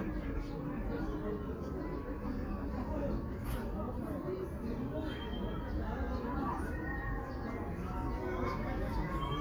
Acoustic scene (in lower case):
park